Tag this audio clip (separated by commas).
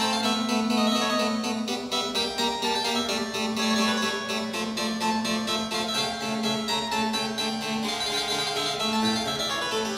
Keyboard (musical), Piano